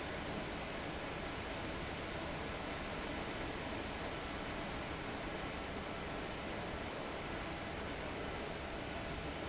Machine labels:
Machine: fan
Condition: abnormal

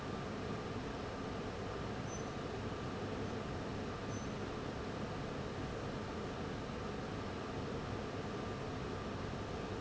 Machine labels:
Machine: fan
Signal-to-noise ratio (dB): 0 dB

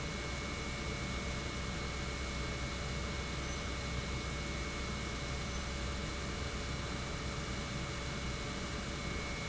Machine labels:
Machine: pump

